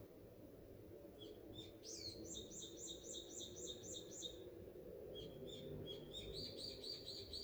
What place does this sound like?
park